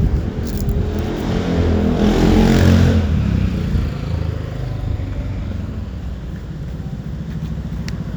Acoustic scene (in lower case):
street